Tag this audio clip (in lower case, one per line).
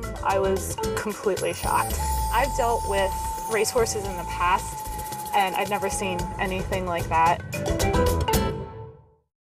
music
speech